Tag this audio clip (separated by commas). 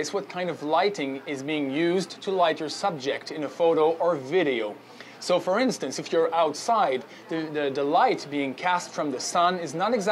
Speech